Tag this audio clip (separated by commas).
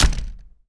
Domestic sounds, Door, Slam